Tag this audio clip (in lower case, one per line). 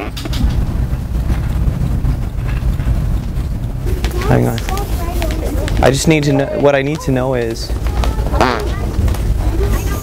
people farting